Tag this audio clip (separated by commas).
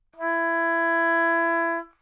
Music, Musical instrument, Wind instrument